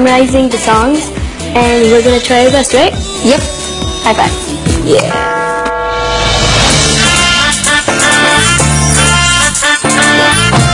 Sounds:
music, male singing, speech

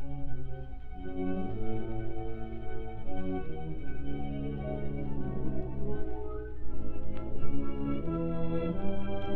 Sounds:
music

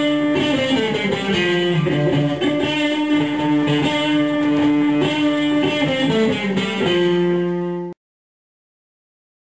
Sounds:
music

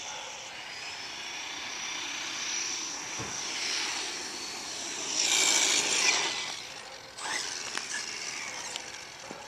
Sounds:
air brake, vehicle

